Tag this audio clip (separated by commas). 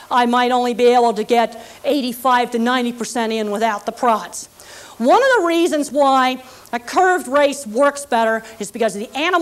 Speech